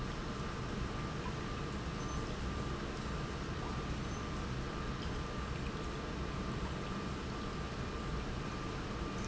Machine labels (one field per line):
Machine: pump